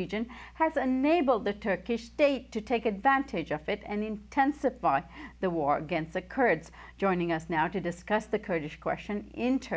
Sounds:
Speech

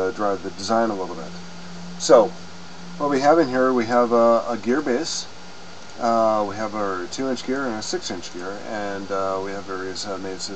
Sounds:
Speech

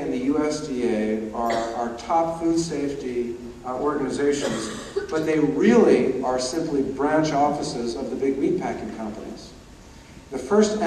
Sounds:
Speech, Male speech, monologue

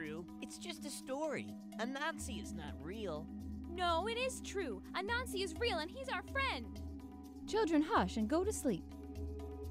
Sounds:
Speech, Music

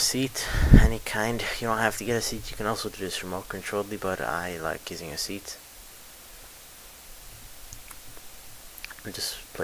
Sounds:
Speech

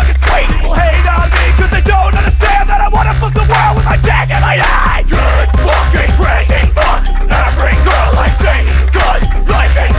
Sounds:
Music

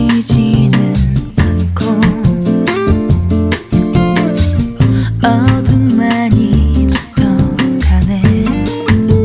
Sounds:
Music

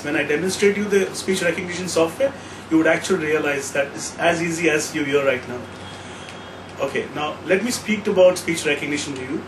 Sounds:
Male speech, Narration, Speech

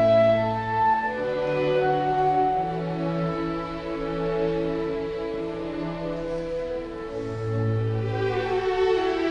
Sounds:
Clarinet, woodwind instrument, Musical instrument, Music

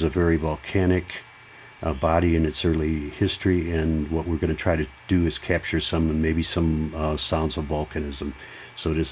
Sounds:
Speech

